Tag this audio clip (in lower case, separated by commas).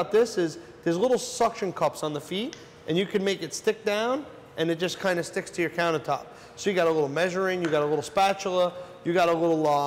speech